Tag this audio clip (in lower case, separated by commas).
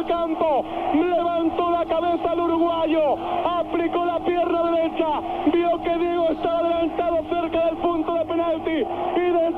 speech